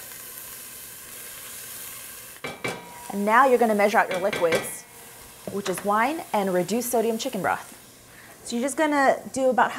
Hissing followed by clanking dishes and speech